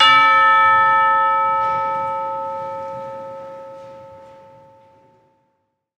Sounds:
Musical instrument, Church bell, Bell, Percussion, Music

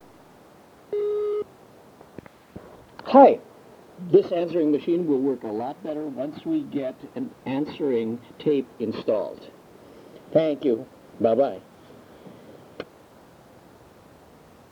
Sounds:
Telephone, Alarm

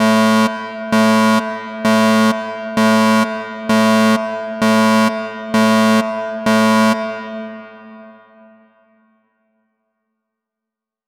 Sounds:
Alarm

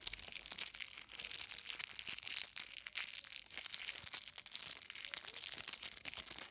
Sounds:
Crackle

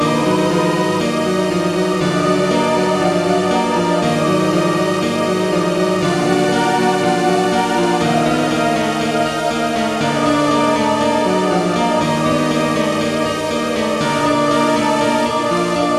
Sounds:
Keyboard (musical), Musical instrument, Music, Organ

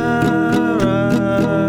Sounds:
Guitar, Musical instrument, Music, Plucked string instrument

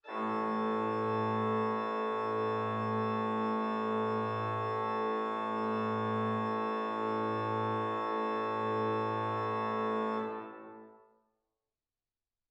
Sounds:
Organ, Keyboard (musical), Musical instrument, Music

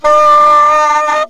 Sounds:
woodwind instrument, Music, Musical instrument

